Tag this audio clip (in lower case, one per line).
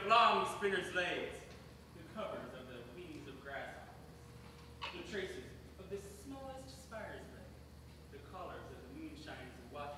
narration
male speech
speech